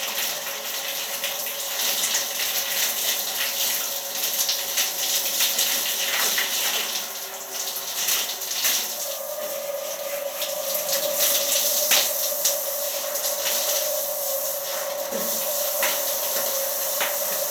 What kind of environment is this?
restroom